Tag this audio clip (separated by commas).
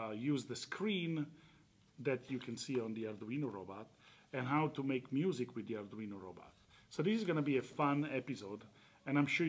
Speech